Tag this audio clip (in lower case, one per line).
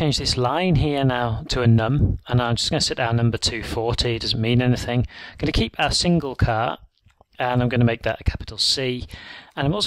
speech